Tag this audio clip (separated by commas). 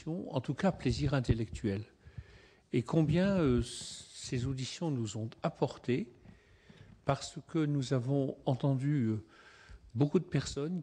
Speech